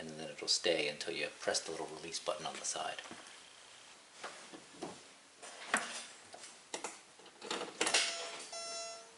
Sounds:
Speech, Car, Vehicle

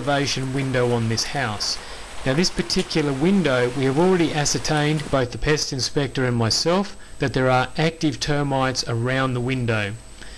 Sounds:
Speech

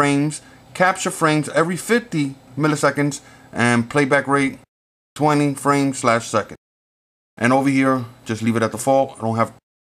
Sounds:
Speech

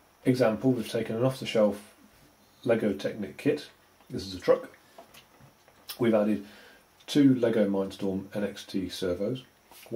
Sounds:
Speech

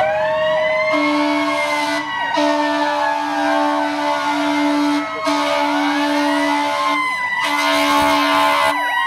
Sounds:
fire truck siren

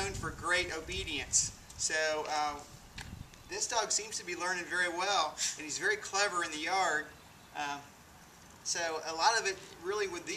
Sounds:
Speech

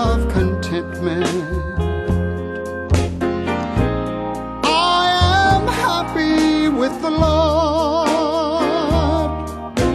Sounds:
Music

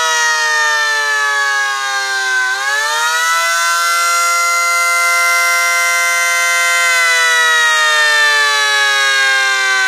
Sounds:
Siren

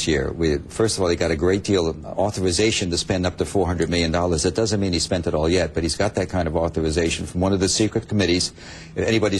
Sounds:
Speech

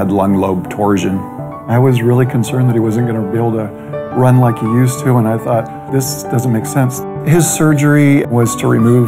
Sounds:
Speech, Music

